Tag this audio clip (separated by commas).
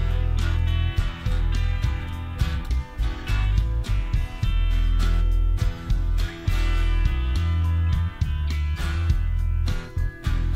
Music